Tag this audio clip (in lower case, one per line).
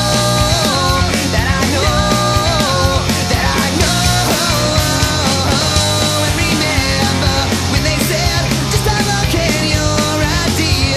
music
jazz